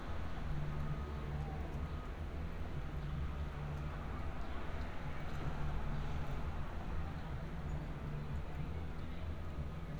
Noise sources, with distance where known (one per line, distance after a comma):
medium-sounding engine